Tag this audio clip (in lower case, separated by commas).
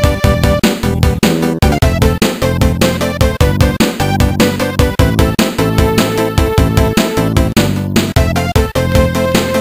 video game music, theme music, music